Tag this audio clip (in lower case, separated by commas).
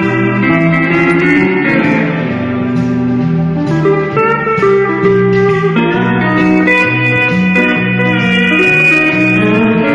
plucked string instrument, music, musical instrument, guitar